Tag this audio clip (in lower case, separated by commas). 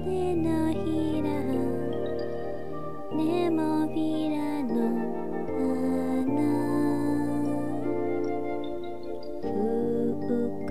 lullaby, music